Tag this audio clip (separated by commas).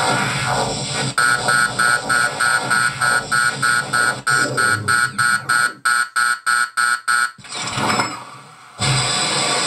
Sound effect